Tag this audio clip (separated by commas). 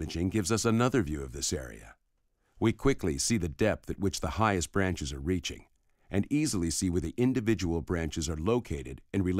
Speech, monologue